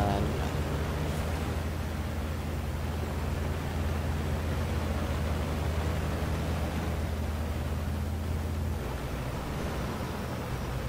A bus is moving there is speech